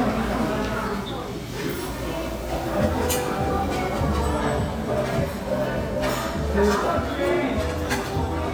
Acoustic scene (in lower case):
restaurant